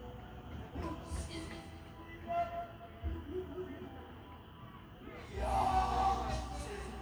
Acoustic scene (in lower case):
park